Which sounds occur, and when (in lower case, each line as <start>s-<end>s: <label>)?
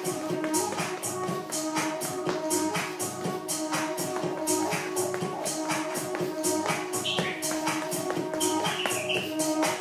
0.0s-9.8s: music
0.3s-1.2s: tap dance
1.4s-2.0s: tap dance
2.1s-2.4s: tap dance
3.1s-3.3s: tap dance
4.0s-4.3s: tap dance
5.1s-5.3s: tap dance
6.1s-6.3s: tap dance
6.6s-6.9s: tap dance
7.0s-7.4s: squeal
7.1s-7.3s: tap dance
7.5s-8.4s: tap dance
8.4s-9.4s: squeal
8.6s-9.3s: tap dance